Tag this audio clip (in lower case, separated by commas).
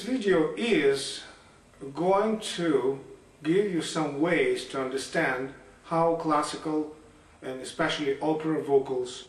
speech